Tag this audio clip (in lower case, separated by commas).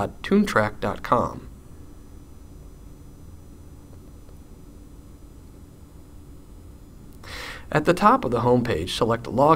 speech